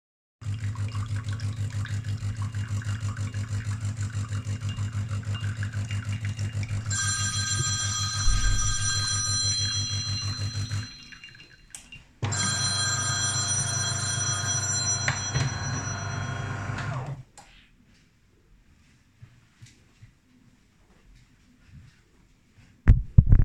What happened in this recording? I was making coffee when my phone started ringing. I walked to the table to pick up the phone